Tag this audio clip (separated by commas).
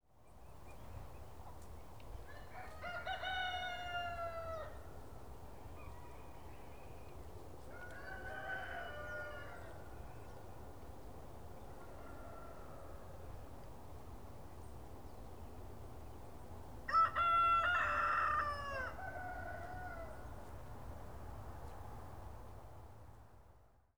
Animal, livestock, Chicken, Fowl